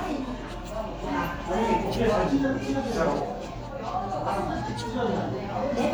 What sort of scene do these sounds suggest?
restaurant